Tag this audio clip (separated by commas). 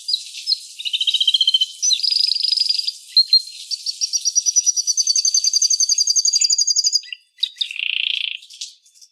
Bird, tweet, Animal, bird call, Wild animals